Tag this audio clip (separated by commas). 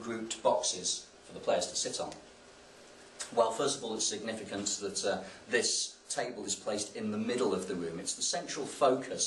Speech